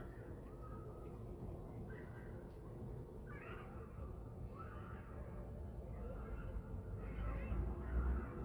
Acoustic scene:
residential area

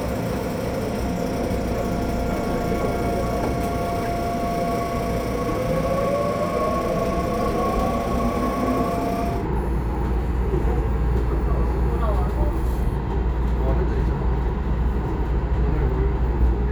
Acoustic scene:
subway train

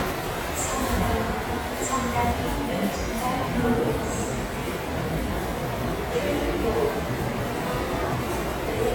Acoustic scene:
subway station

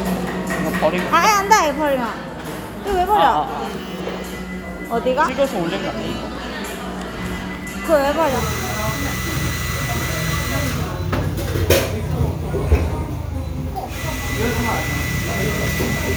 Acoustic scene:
cafe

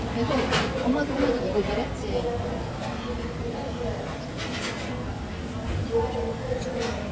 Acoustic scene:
cafe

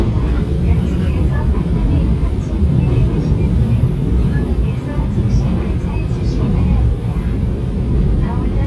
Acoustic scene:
subway train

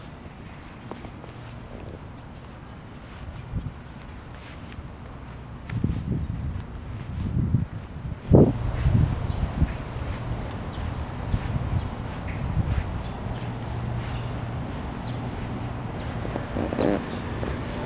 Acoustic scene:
park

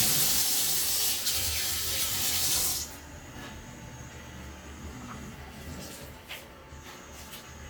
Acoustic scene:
kitchen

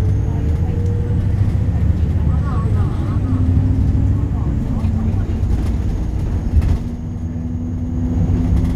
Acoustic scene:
bus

